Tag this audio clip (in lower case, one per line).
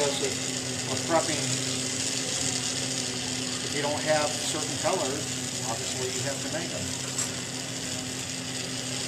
speech